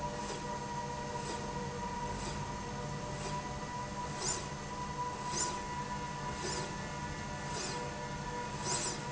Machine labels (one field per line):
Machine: slide rail